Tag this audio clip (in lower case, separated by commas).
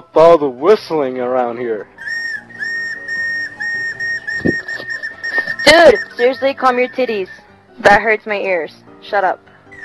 whistle